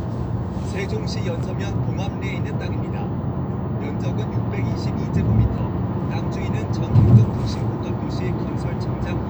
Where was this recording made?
in a car